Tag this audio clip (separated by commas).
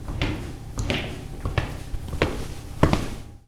Walk